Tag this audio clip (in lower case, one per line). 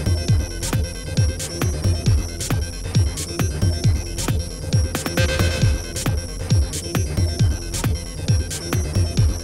music